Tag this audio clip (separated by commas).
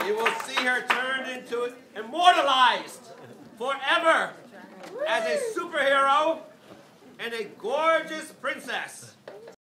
man speaking, Speech